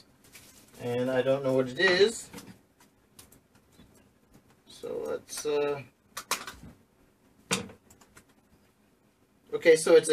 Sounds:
speech, inside a small room

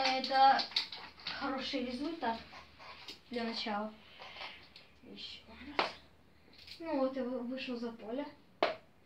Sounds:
playing darts

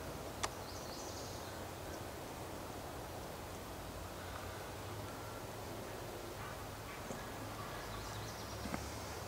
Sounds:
woodpecker pecking tree

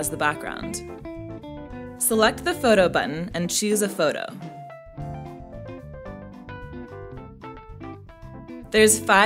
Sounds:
speech, music

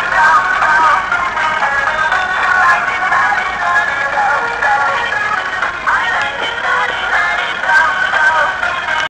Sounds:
music

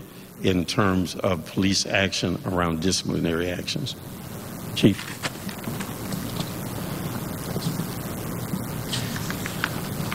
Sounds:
speech

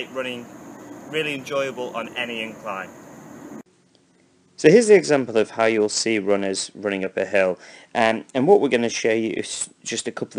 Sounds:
speech

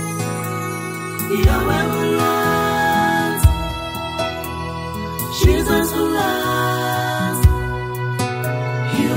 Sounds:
gospel music, music

